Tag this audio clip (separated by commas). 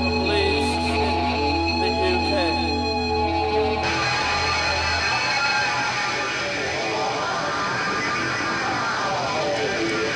Speech, Music